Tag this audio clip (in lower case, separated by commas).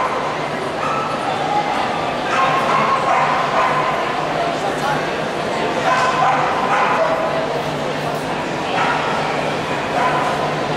yip, bow-wow, pets, dog, animal